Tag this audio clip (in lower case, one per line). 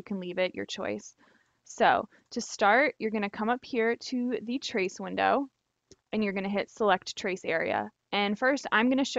speech